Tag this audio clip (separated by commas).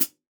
Percussion, Cymbal, Hi-hat, Musical instrument, Music